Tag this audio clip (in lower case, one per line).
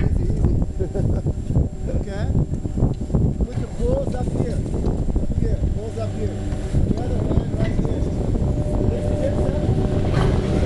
speech
outside, rural or natural